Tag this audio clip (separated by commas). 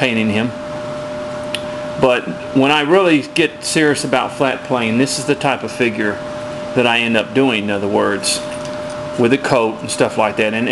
Speech